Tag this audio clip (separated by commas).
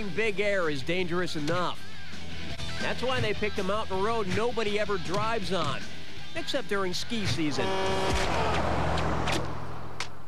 Speech, Music, Vehicle